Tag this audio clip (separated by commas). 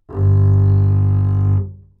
Musical instrument, Music, Bowed string instrument